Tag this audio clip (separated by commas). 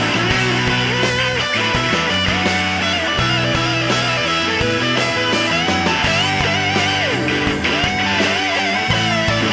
Music